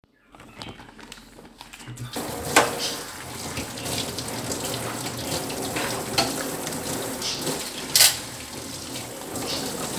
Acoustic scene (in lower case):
kitchen